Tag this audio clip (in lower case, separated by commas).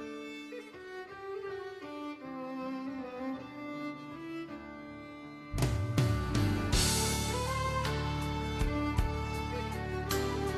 orchestra